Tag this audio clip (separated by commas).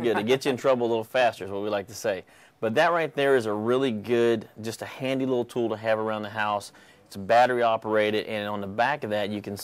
Speech